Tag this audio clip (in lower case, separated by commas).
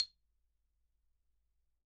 music, musical instrument, percussion, mallet percussion, marimba